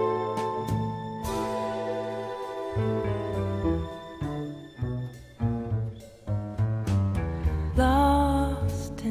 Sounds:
music, tender music

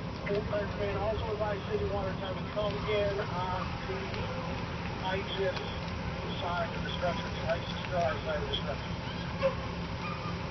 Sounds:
speech

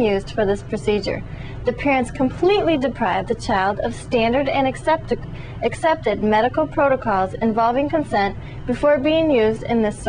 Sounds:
speech, inside a small room

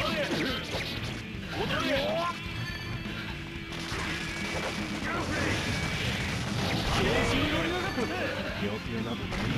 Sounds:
speech, music

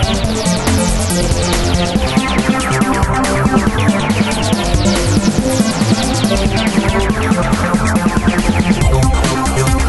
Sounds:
music, sampler

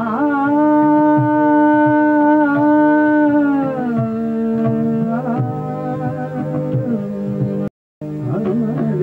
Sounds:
music, carnatic music

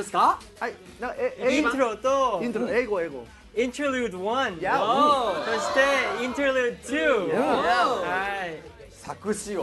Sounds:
speech, inside a large room or hall, music

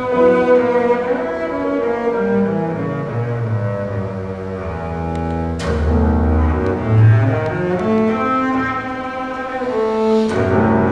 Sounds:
musical instrument, double bass, playing double bass, music

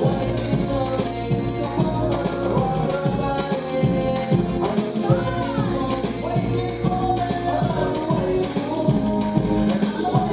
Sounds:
music of latin america, music, maraca

